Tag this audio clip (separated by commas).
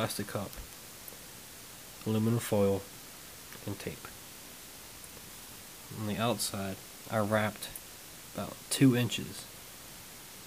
Speech